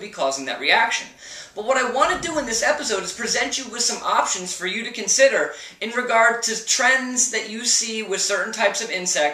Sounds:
Speech

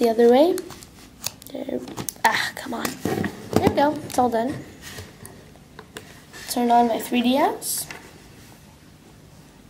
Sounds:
woman speaking

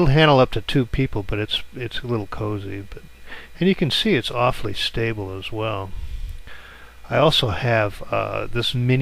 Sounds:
Speech

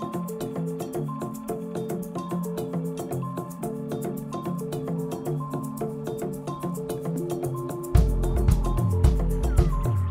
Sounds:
Music

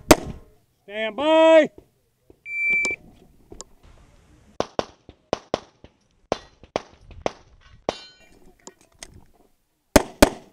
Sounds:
Speech

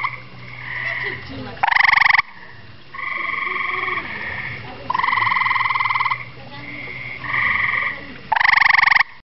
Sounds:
Frog

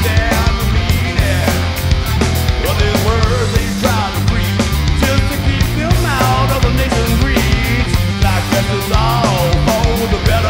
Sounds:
Music, Musical instrument

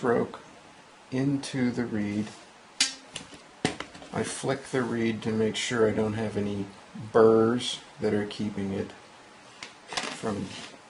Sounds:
Speech

